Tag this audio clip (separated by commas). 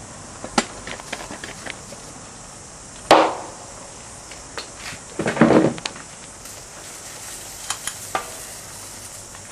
Fire